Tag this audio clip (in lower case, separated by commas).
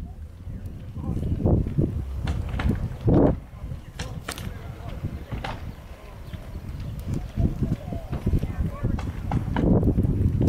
crackle, speech